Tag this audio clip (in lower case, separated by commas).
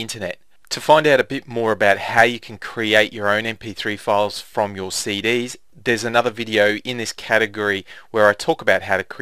speech